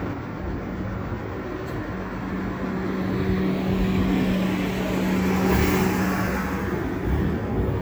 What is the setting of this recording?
residential area